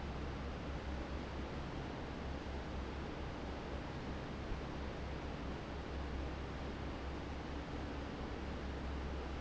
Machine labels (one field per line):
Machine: fan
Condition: normal